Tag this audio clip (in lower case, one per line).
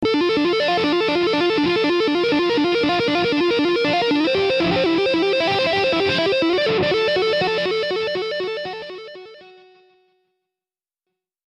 plucked string instrument
music
musical instrument
guitar